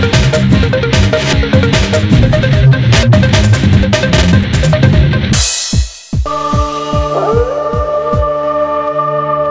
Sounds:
Music

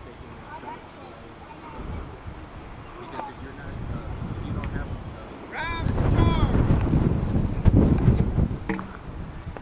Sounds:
Speech, outside, rural or natural

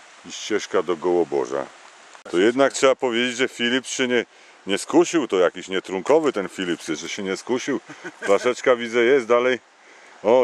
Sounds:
Speech, outside, rural or natural

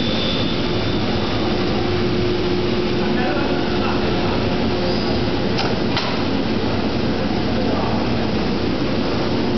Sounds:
Speech

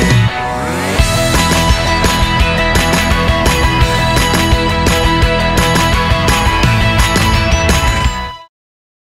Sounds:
Music

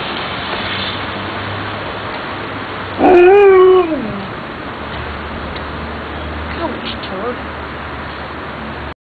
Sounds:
Speech

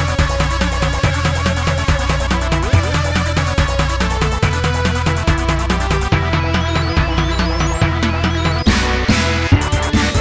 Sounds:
Music, Video game music

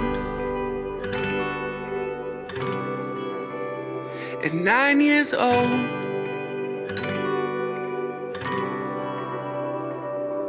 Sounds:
Plucked string instrument, Music

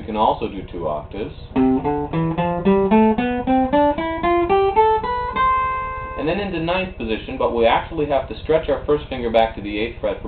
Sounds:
Guitar, Acoustic guitar, Plucked string instrument, Strum, Speech, Musical instrument, Electric guitar, Music

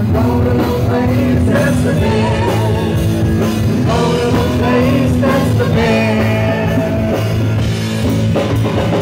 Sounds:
Musical instrument, Music

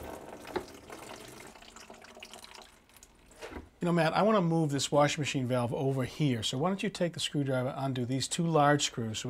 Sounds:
Speech, Water tap, inside a small room

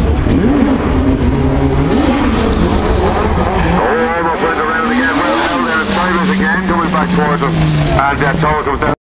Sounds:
Car passing by

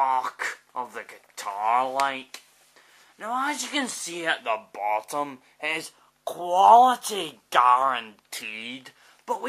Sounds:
Speech

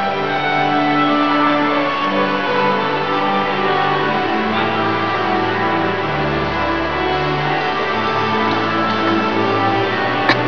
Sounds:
Music

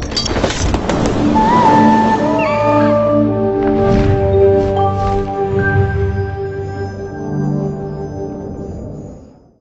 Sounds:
Music

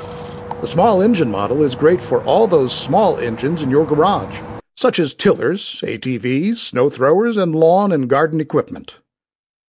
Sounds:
Medium engine (mid frequency), Speech, Engine

